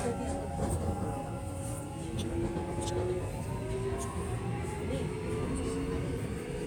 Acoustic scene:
subway train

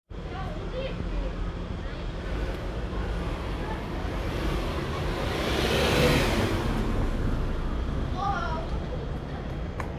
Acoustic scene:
residential area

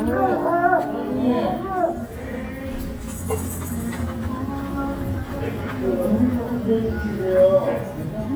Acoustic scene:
restaurant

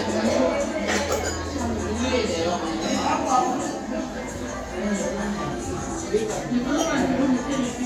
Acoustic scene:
restaurant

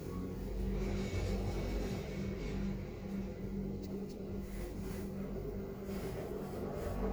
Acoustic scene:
elevator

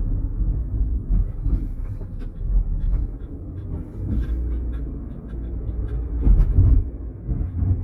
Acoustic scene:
car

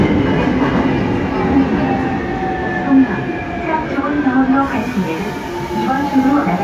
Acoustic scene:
subway train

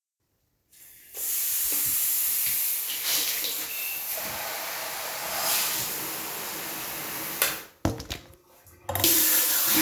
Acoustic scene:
restroom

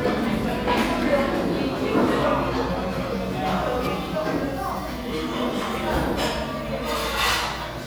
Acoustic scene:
crowded indoor space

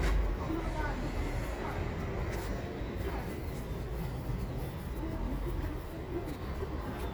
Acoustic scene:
residential area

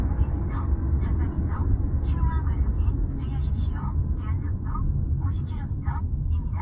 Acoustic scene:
car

